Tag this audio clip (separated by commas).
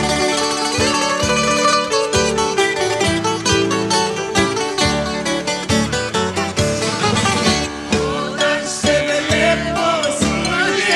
Singing, Zither